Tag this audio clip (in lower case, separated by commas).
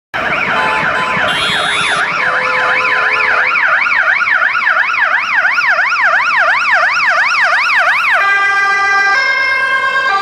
emergency vehicle, siren, ambulance siren, ambulance (siren)